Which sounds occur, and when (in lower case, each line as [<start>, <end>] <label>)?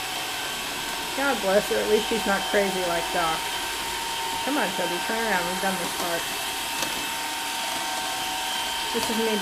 [0.00, 9.41] mechanisms
[8.91, 9.41] woman speaking
[8.93, 9.13] generic impact sounds